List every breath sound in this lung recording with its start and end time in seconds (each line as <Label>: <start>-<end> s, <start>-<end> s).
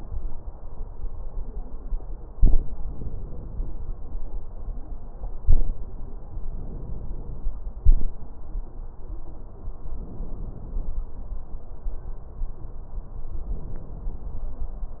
Inhalation: 2.89-4.39 s, 6.45-7.66 s, 9.81-11.03 s, 13.45-14.57 s
Exhalation: 7.78-8.14 s